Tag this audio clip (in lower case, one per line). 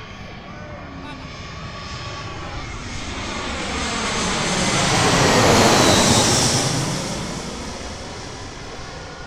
vehicle
aircraft
airplane